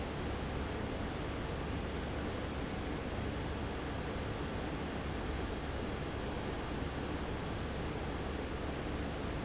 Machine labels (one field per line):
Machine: fan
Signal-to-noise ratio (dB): -6 dB